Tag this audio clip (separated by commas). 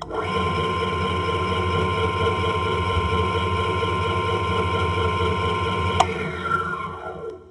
Engine, Tools